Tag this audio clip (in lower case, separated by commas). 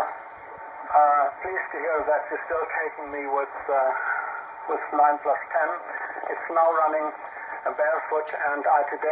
radio, speech